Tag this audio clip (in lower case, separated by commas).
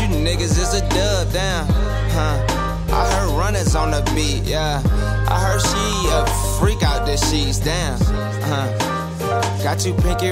music